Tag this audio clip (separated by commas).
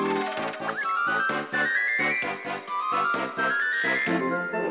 Music